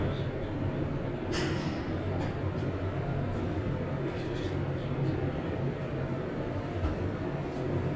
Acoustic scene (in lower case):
elevator